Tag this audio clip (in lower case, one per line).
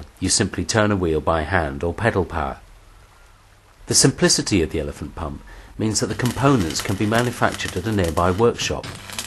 speech